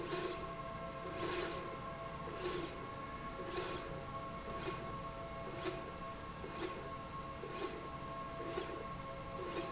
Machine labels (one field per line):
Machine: slide rail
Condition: normal